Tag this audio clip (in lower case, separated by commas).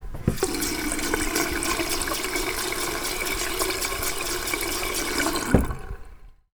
sink (filling or washing), water tap, home sounds